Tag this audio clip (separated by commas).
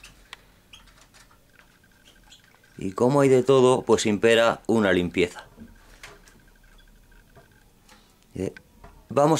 Speech